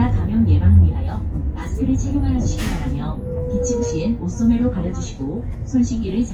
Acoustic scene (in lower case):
bus